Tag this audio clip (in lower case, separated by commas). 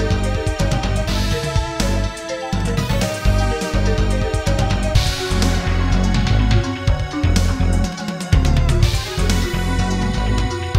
music